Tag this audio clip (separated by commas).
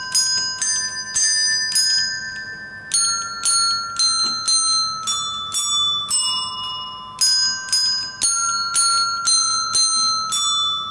Bell